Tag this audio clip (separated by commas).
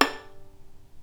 Bowed string instrument, Musical instrument, Music